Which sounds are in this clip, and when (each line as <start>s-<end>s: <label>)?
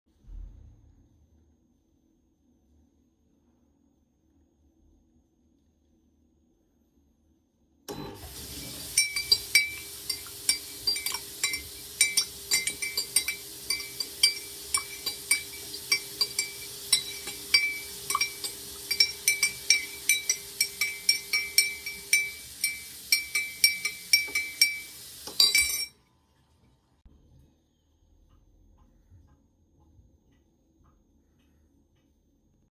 7.7s-26.1s: cutlery and dishes
7.7s-25.9s: running water
7.8s-8.4s: coffee machine